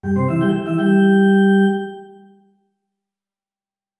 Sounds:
Music, Musical instrument, Keyboard (musical), Organ

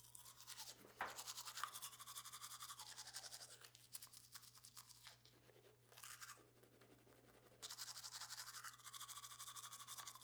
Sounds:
home sounds

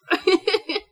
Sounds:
Laughter, Human voice

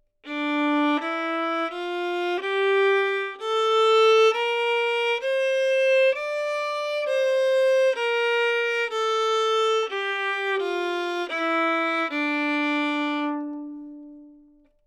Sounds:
Bowed string instrument, Music, Musical instrument

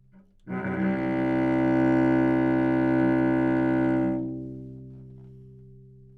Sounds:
Music, Bowed string instrument, Musical instrument

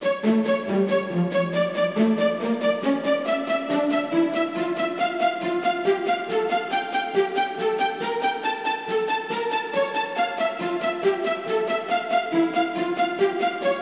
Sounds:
Music, Musical instrument

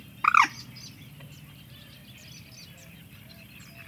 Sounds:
Wild animals, Bird, Animal

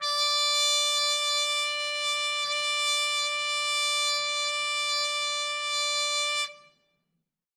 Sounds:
Brass instrument, Music, Trumpet, Musical instrument

